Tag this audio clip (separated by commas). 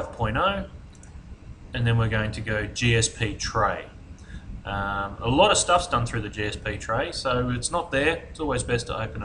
Speech